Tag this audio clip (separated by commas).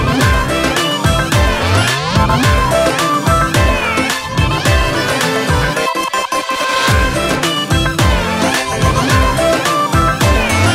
Music